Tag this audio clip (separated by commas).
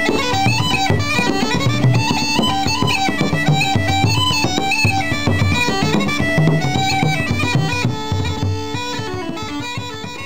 Bagpipes, Drum, Music, Musical instrument